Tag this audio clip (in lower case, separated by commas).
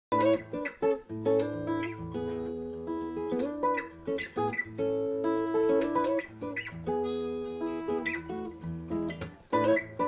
music, ukulele